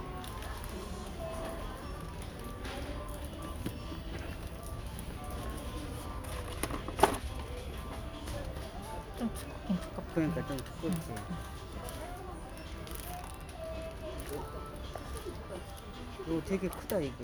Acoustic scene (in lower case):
crowded indoor space